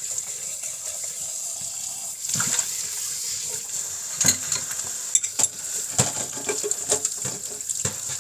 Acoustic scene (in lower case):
kitchen